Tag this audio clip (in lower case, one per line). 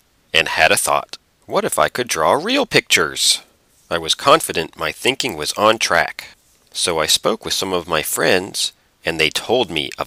speech